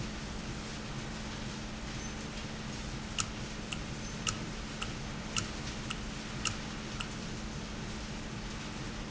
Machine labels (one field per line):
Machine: valve